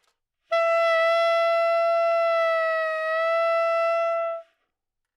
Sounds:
Music, Musical instrument, woodwind instrument

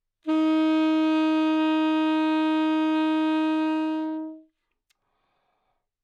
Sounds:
Music, woodwind instrument, Musical instrument

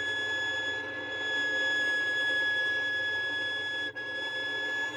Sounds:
Bowed string instrument, Musical instrument, Music

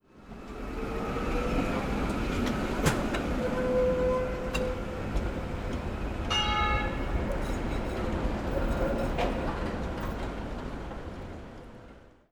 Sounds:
Bell

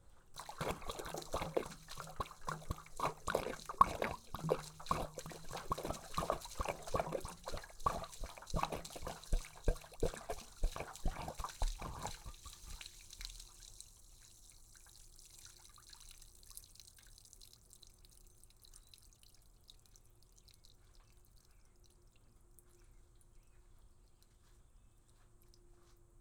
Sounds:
Splash, Liquid

